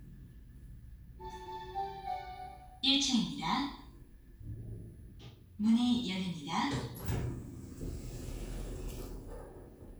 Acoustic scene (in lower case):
elevator